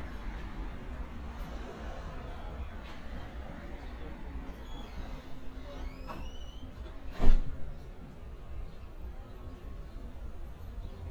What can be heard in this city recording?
non-machinery impact, person or small group talking